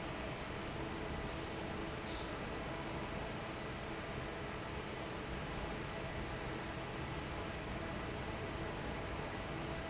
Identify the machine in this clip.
fan